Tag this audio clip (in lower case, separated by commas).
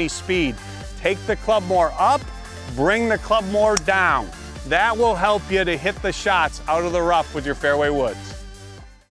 music, speech